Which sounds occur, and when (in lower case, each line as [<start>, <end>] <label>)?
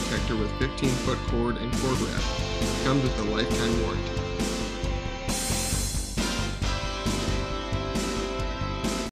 [0.00, 9.08] music
[0.07, 2.34] man speaking
[2.83, 3.93] man speaking